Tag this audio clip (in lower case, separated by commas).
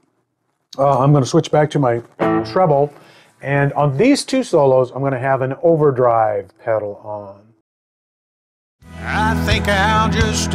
music, musical instrument, speech, guitar, plucked string instrument